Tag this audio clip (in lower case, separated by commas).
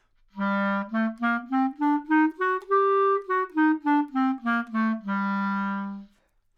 woodwind instrument, music, musical instrument